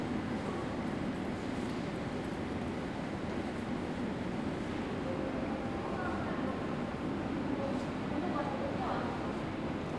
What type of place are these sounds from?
subway station